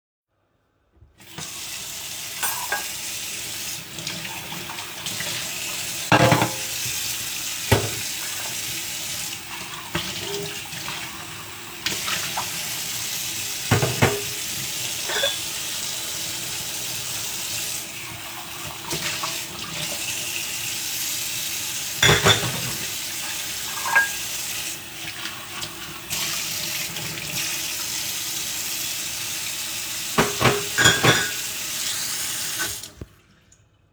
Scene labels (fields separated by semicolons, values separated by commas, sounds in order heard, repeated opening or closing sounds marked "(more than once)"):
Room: kitchen; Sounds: running water, cutlery and dishes